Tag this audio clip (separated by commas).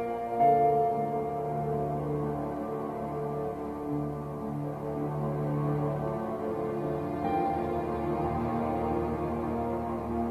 playing piano, Music, Electric piano, Musical instrument, Piano, Keyboard (musical)